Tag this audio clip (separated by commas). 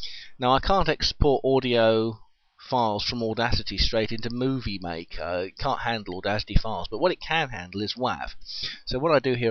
Speech